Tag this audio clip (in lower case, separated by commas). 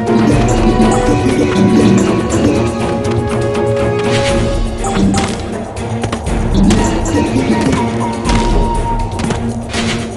music